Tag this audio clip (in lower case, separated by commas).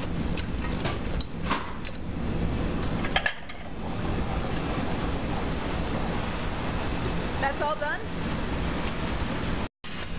speech